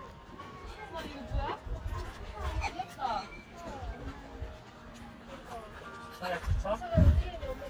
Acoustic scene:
park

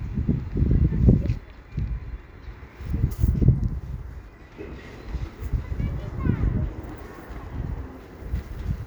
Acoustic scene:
residential area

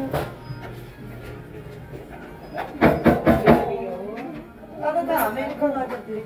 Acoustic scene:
cafe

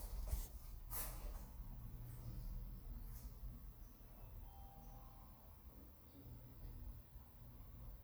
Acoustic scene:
elevator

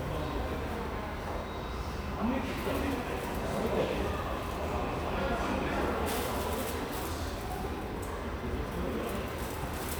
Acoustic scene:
subway station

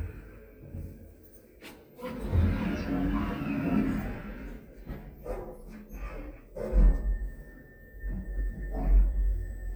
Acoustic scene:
elevator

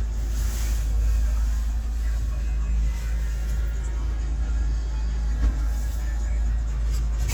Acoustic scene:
car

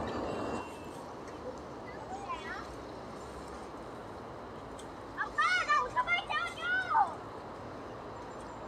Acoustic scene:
park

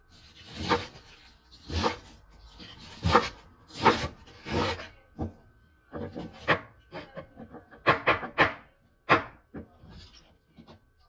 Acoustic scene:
kitchen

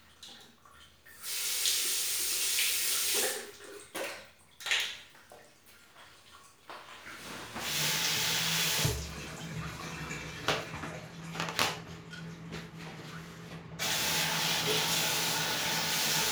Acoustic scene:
restroom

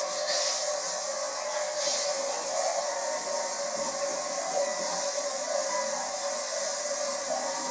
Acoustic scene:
restroom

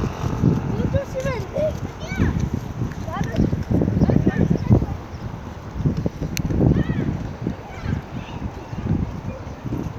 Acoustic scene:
street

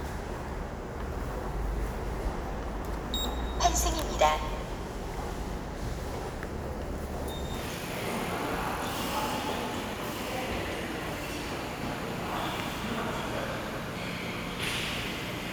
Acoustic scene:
subway station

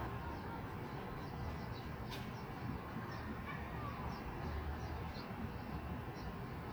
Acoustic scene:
residential area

